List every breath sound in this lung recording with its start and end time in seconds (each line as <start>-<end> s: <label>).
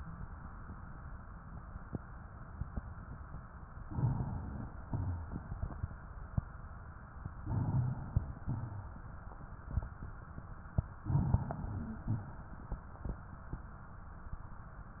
3.84-4.81 s: inhalation
4.83-6.36 s: exhalation
7.40-8.41 s: inhalation
8.43-9.73 s: exhalation
11.00-12.00 s: inhalation
11.99-13.31 s: exhalation